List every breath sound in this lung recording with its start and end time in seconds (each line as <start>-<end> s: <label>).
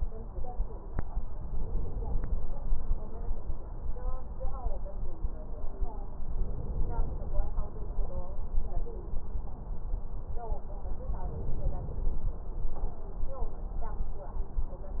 6.33-7.36 s: inhalation
11.28-12.30 s: inhalation